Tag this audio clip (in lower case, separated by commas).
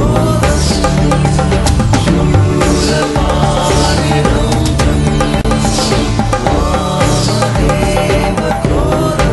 mantra, music